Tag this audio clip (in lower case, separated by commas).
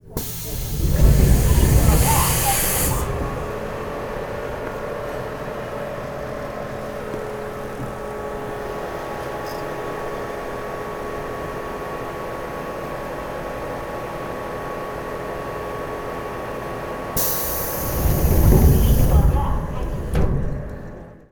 vehicle, metro, rail transport